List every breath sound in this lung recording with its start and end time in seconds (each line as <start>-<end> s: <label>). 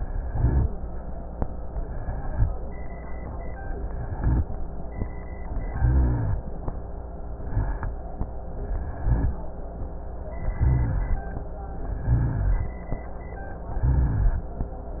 0.00-0.80 s: rhonchi
0.00-0.86 s: inhalation
3.91-4.50 s: inhalation
3.91-4.50 s: rhonchi
5.67-6.47 s: inhalation
5.67-6.47 s: rhonchi
7.27-7.97 s: inhalation
7.27-7.97 s: rhonchi
8.59-9.39 s: inhalation
8.59-9.39 s: rhonchi
10.49-11.29 s: inhalation
10.49-11.29 s: rhonchi
12.05-12.85 s: inhalation
12.05-12.85 s: rhonchi
13.76-14.55 s: inhalation
13.76-14.55 s: rhonchi